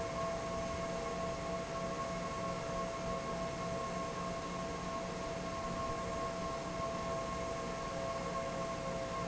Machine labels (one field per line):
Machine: fan